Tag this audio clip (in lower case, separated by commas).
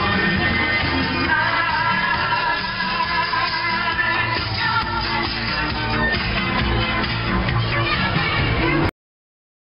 music